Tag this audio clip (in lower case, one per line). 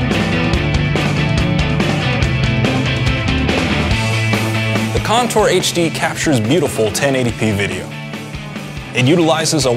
speech
music